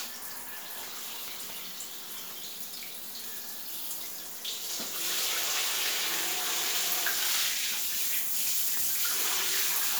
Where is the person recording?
in a restroom